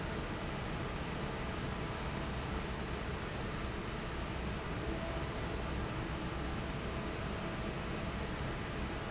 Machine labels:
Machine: fan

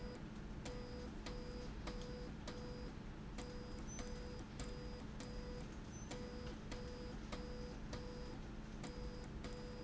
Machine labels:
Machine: slide rail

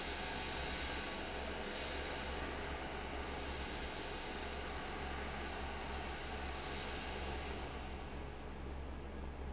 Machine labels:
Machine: fan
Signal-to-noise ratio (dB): 0 dB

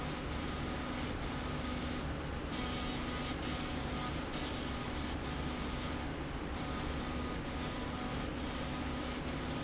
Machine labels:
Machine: slide rail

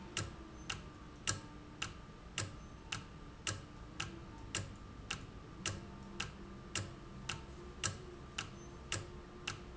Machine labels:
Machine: valve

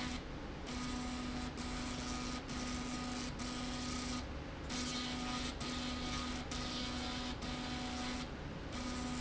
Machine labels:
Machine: slide rail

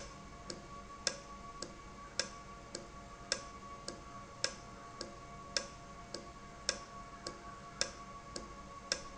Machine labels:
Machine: valve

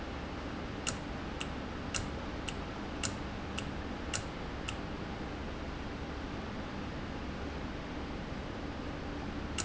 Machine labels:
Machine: valve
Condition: normal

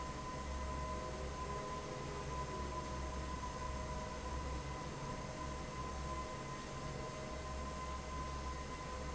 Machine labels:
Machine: fan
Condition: normal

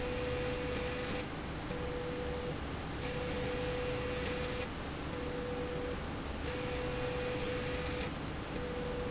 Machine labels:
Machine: slide rail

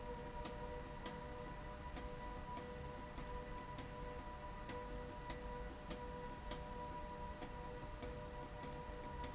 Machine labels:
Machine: slide rail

